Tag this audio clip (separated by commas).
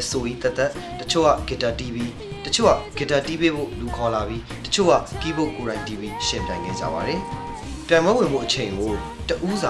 Music, Female singing, Speech